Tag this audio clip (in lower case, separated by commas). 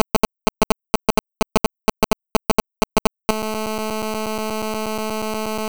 telephone, alarm